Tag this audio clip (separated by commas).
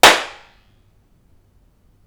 Clapping, Hands